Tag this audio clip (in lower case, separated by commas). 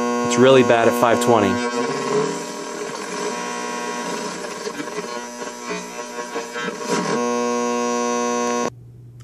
electric razor, speech